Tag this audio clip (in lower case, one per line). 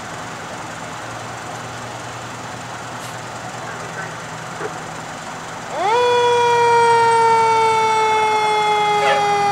speech
truck
vehicle
fire engine